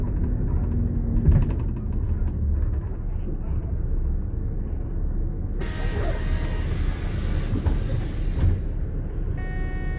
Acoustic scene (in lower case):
bus